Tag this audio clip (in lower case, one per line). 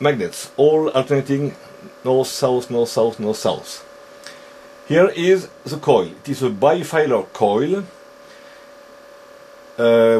speech